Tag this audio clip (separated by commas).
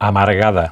Male speech, Speech, Human voice